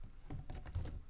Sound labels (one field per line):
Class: cupboard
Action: opening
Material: wooden